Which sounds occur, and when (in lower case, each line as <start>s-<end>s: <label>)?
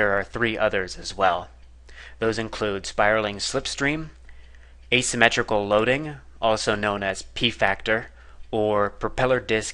0.0s-1.5s: male speech
0.0s-9.7s: mechanisms
1.6s-1.7s: clicking
1.9s-2.2s: breathing
2.2s-4.2s: male speech
4.3s-4.6s: clicking
4.3s-4.8s: breathing
4.8s-4.9s: generic impact sounds
4.9s-6.2s: male speech
6.4s-7.3s: male speech
7.4s-8.1s: male speech
8.1s-8.4s: breathing
8.4s-8.5s: generic impact sounds
8.5s-8.9s: male speech
9.0s-9.7s: male speech